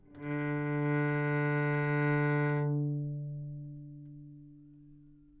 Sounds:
bowed string instrument, music, musical instrument

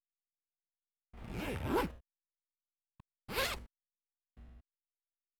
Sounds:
zipper (clothing), home sounds

